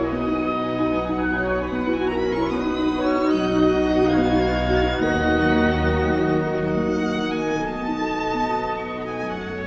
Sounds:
musical instrument, fiddle, music, violin

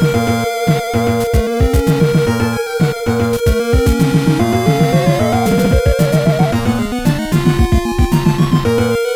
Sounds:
music, video game music

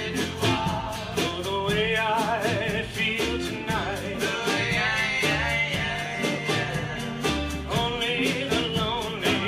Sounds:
music, rock and roll

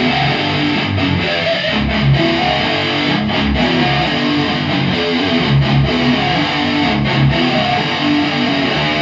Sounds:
musical instrument, music, playing electric guitar, plucked string instrument, electric guitar, guitar

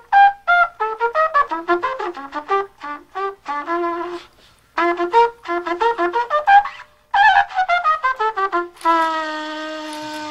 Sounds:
playing cornet

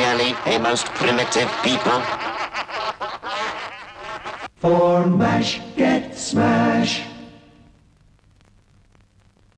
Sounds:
music, speech

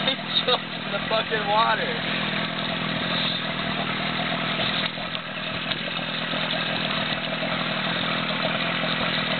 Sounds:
boat, outside, rural or natural, speech, vehicle

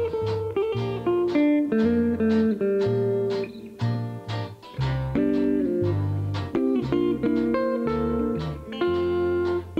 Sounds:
plucked string instrument, guitar, music, slide guitar, musical instrument

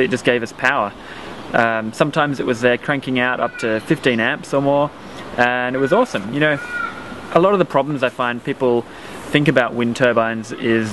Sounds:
speech

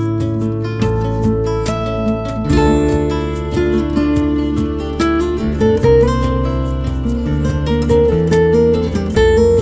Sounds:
music, acoustic guitar, musical instrument, guitar, plucked string instrument

